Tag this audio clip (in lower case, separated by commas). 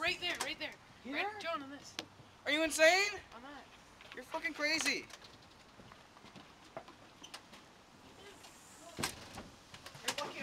speech